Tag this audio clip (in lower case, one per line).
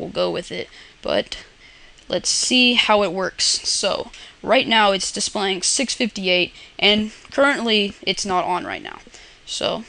speech